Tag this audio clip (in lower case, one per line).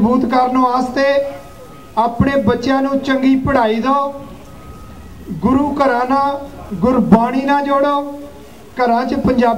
monologue
speech
man speaking